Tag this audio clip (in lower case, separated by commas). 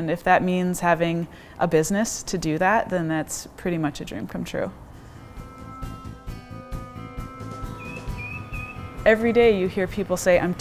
music, speech